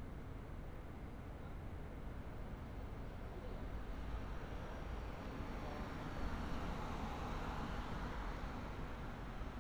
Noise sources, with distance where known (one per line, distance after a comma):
medium-sounding engine